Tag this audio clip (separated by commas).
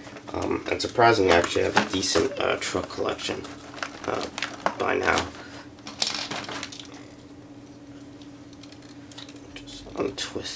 Speech